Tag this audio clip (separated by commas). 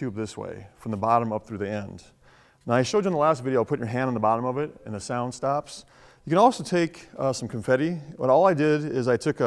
Speech